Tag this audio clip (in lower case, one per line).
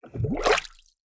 gurgling
water